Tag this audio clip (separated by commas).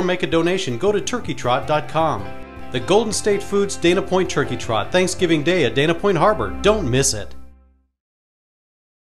Music, Speech